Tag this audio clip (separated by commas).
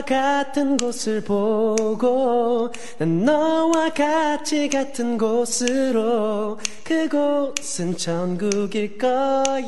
Male singing